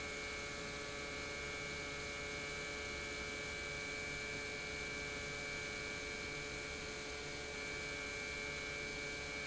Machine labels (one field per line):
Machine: pump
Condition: normal